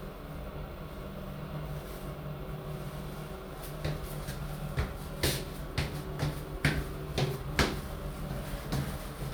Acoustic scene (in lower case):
elevator